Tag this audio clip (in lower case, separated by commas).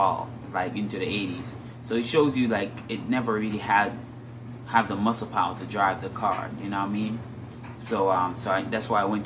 speech, inside a small room